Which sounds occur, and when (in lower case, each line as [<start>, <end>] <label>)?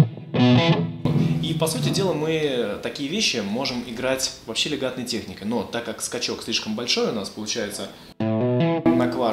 [0.00, 2.17] music
[0.00, 9.32] background noise
[1.37, 7.93] male speech
[7.72, 9.32] music